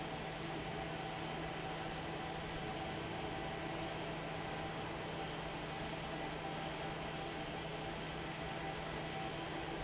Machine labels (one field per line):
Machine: fan